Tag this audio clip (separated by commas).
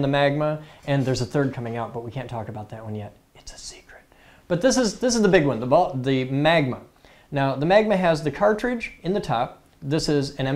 Speech